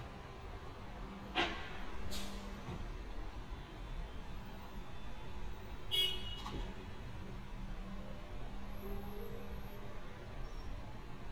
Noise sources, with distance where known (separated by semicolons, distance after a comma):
unidentified impact machinery, far; car horn, far